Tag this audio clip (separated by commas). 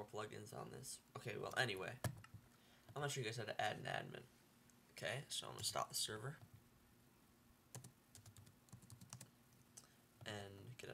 inside a small room, Speech